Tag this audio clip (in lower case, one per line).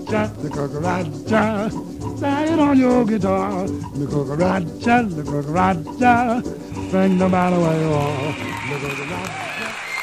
music